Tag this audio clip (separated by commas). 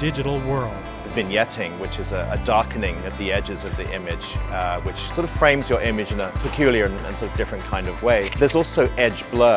Music, Speech, Single-lens reflex camera